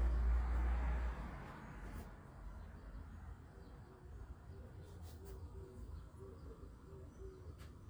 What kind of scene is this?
residential area